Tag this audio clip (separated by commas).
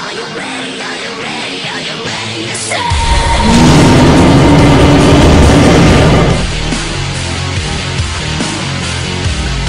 Music